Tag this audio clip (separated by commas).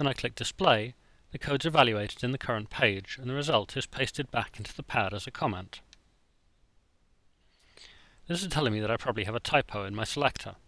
Speech